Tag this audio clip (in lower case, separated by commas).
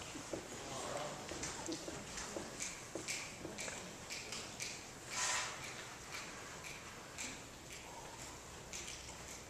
speech